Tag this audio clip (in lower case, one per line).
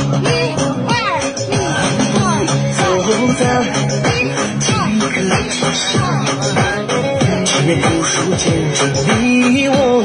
people shuffling